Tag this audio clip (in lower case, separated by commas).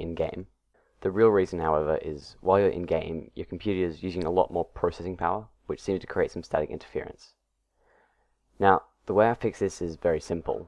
speech